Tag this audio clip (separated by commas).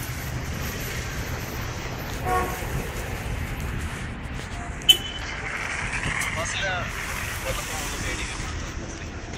Car, Motor vehicle (road), Vehicle, Speech